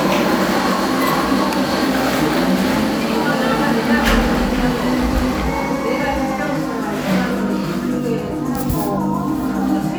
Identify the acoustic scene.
cafe